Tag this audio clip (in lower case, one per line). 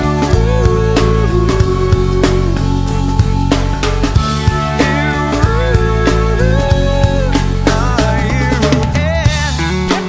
music